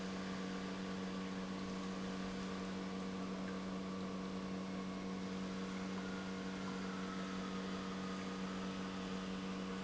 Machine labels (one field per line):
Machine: pump